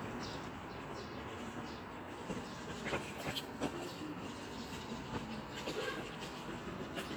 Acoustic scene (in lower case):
residential area